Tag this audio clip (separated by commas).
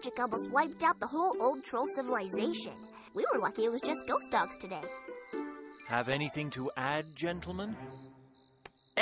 Music, Speech